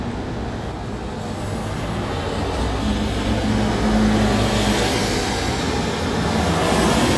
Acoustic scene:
street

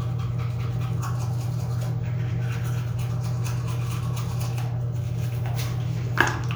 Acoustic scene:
restroom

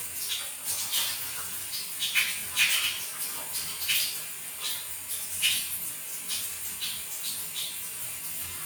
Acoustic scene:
restroom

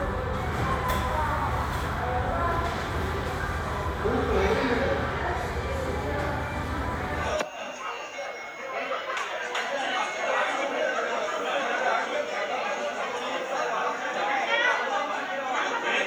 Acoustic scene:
restaurant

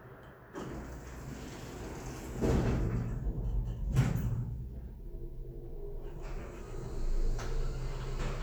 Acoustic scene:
elevator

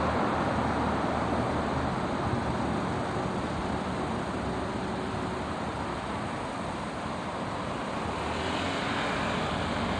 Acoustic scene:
street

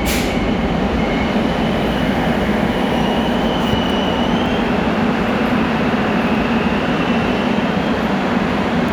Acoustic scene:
subway station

